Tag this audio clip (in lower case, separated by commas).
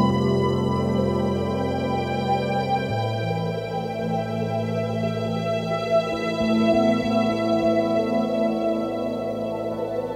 ambient music, music